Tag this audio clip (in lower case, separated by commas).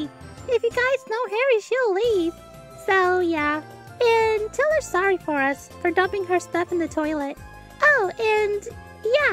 music, speech